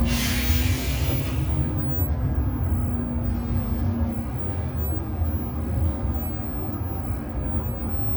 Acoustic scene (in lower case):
bus